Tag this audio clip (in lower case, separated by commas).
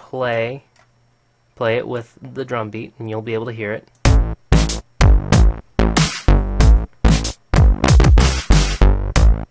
inside a small room, speech, music